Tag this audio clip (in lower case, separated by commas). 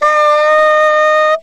music, wind instrument, musical instrument